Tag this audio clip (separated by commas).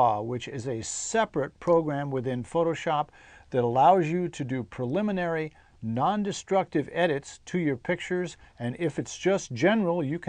Speech